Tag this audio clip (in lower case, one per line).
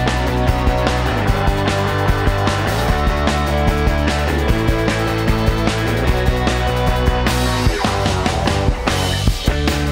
music